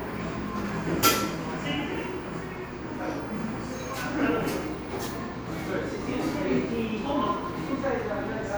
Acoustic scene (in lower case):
crowded indoor space